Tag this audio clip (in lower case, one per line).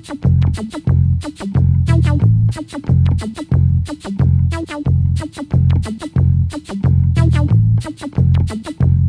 music